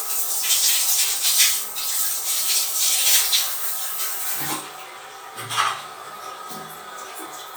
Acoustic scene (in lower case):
restroom